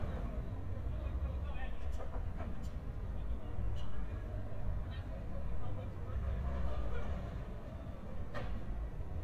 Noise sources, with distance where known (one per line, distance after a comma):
person or small group talking, far